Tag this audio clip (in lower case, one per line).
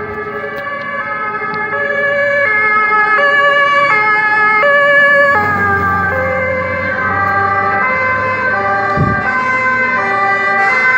fire truck siren